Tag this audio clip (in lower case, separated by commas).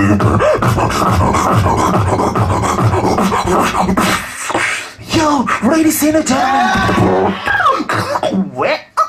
beatboxing